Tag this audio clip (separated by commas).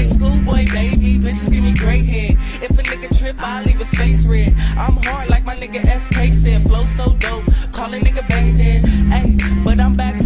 Music, Exciting music